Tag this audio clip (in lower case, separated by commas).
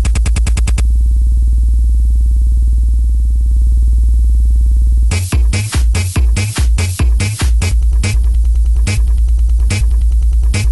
techno, electronic music, electronic dance music, music